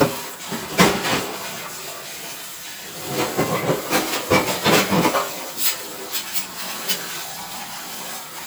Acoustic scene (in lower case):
kitchen